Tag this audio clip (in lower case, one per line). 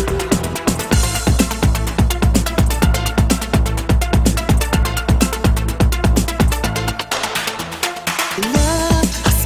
exciting music
music